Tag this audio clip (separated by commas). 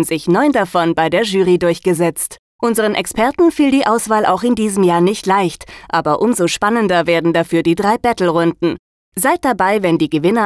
Speech